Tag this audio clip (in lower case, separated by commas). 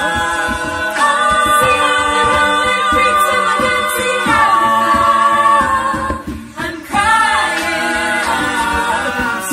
a capella, singing, music, choir, vocal music